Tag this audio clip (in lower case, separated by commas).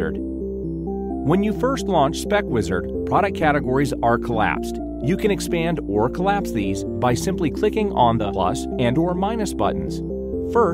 speech, music